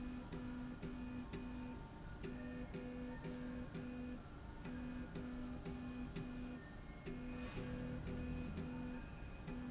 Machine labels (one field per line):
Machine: slide rail